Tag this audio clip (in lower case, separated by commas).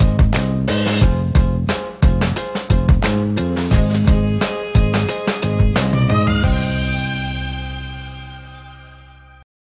music